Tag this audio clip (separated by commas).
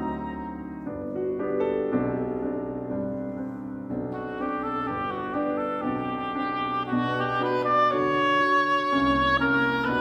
playing oboe